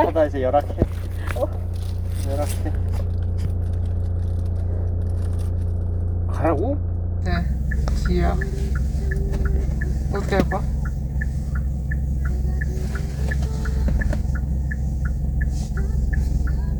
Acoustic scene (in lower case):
car